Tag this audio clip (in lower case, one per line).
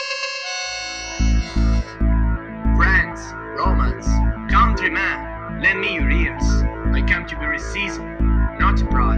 speech
music
speech synthesizer
monologue